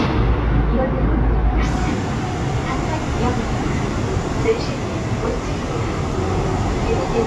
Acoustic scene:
subway train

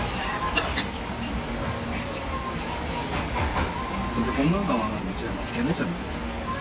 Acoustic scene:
restaurant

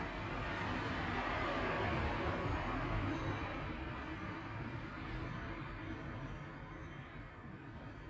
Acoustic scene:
street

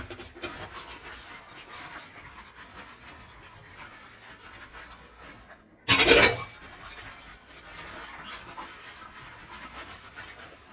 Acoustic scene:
kitchen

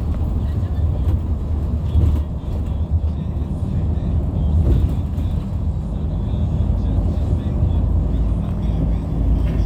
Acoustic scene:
bus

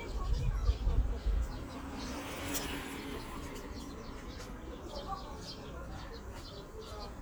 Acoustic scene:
park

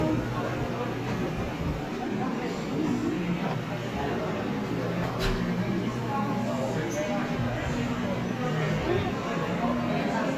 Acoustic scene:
cafe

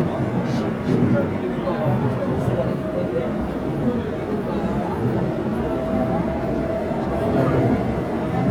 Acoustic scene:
subway train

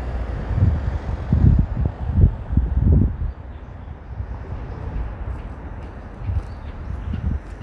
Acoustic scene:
street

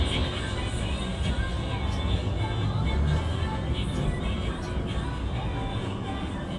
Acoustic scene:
bus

